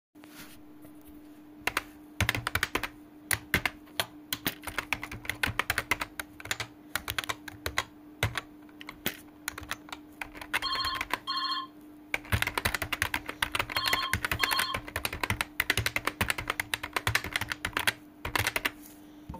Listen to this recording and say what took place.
While typing on my keyboard, computer fans can be heard, while also my phone starts ringing